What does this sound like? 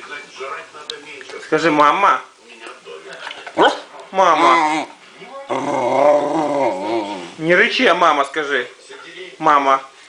People are talking and a dog growls and barks lightly